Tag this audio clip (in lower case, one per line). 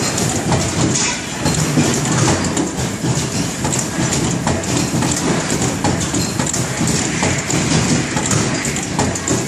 printer